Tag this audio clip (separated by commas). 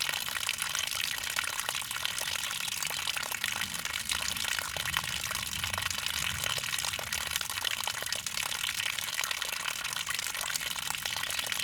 Liquid